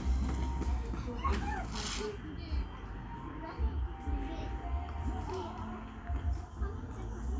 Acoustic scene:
park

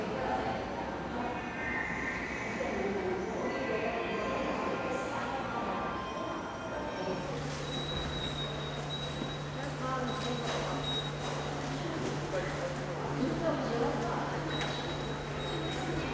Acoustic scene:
subway station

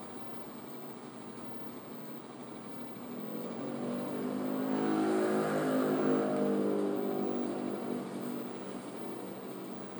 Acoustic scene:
bus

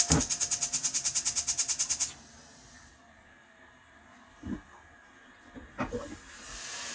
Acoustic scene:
kitchen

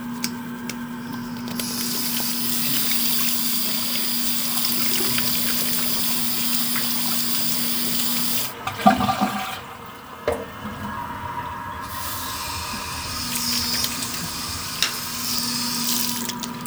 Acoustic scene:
restroom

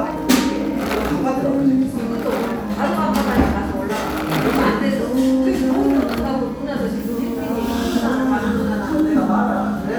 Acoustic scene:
cafe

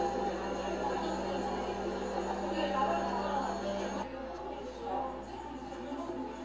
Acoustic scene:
cafe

